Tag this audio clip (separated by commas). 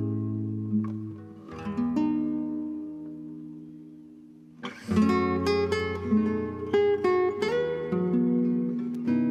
Plucked string instrument, Acoustic guitar, Guitar, Music, Musical instrument, Bass guitar, Strum